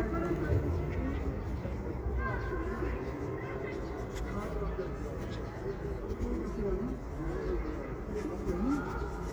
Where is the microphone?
in a residential area